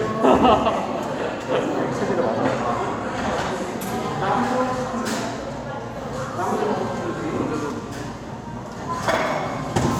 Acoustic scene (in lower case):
cafe